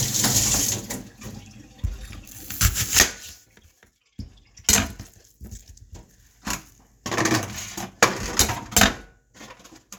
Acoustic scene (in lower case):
kitchen